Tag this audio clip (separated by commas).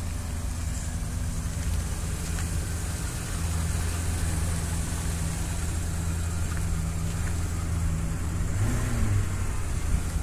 Vehicle, Car, outside, urban or man-made